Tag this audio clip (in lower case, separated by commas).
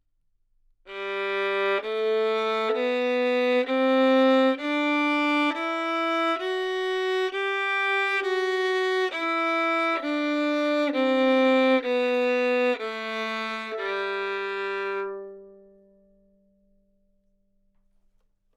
bowed string instrument, musical instrument, music